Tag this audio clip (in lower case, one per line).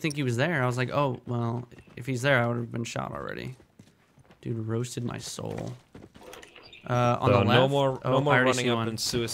speech